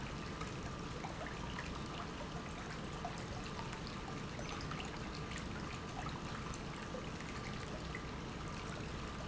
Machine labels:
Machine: pump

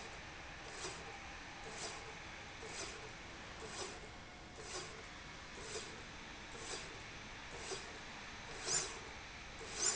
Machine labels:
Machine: slide rail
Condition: normal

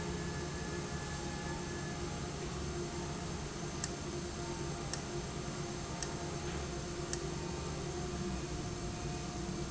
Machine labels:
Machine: valve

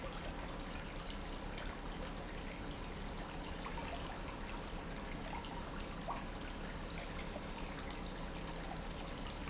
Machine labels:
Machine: pump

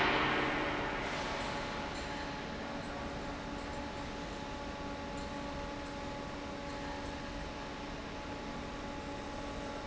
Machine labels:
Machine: fan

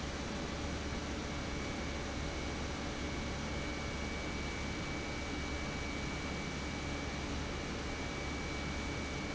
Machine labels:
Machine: pump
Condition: normal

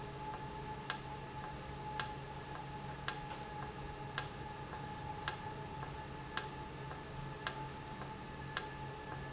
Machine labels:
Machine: valve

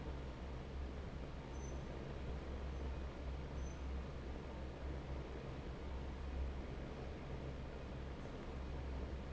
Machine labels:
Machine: fan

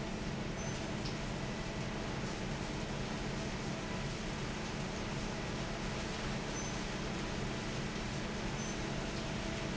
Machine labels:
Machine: fan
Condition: normal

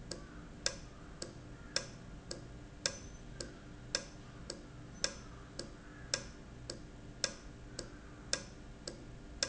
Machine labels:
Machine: valve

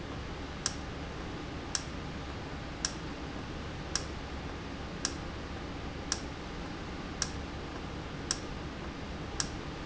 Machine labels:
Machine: valve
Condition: normal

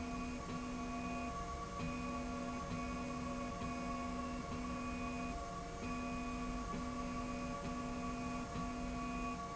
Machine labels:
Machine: slide rail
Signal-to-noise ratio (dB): 0 dB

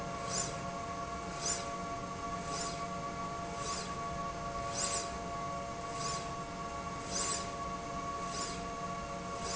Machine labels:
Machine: slide rail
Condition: normal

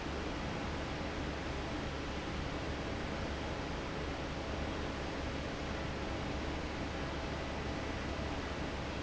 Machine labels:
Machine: fan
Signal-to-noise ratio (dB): -6 dB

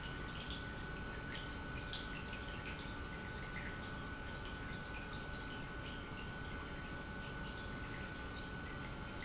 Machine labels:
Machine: pump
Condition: normal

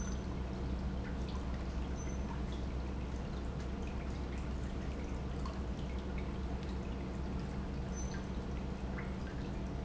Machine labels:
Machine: pump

